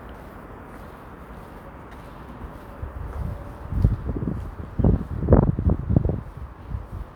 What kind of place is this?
residential area